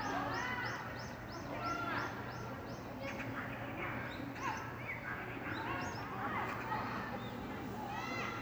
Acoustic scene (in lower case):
park